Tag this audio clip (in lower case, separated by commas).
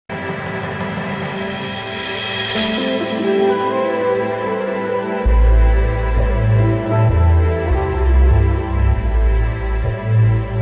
background music